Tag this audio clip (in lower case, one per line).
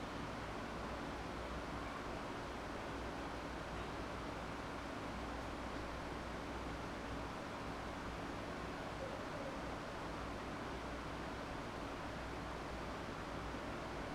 mechanical fan
mechanisms